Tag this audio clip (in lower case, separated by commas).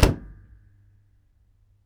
slam, door, home sounds